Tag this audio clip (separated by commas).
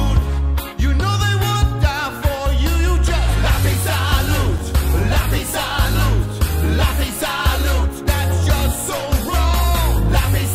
Music, Happy music